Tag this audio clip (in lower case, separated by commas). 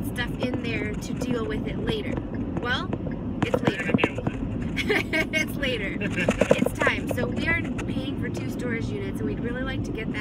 vehicle, car